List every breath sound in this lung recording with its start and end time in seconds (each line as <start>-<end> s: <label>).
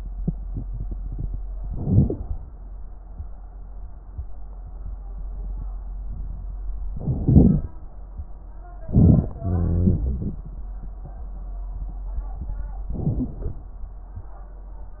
1.56-2.23 s: inhalation
6.91-7.70 s: inhalation
8.89-9.38 s: inhalation
9.36-10.51 s: exhalation
9.36-10.51 s: wheeze
12.87-13.68 s: inhalation